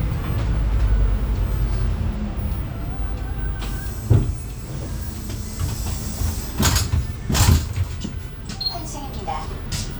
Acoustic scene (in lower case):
bus